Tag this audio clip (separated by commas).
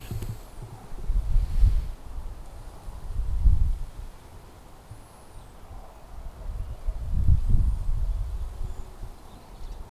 Wind